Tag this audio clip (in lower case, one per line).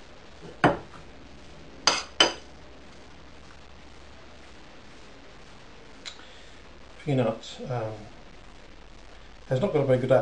speech